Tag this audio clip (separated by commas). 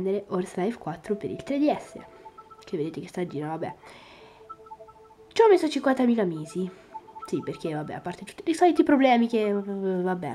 Speech